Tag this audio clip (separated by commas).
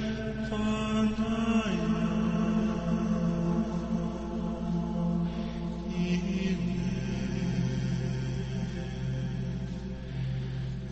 Mantra